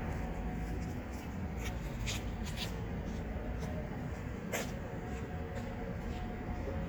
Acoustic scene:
street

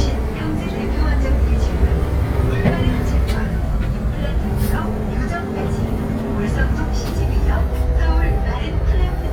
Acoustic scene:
bus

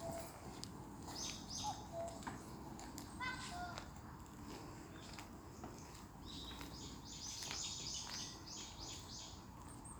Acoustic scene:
park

